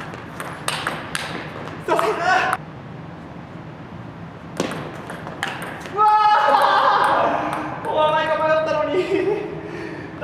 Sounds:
playing table tennis

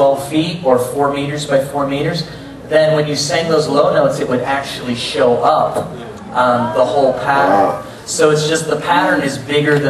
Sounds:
speech

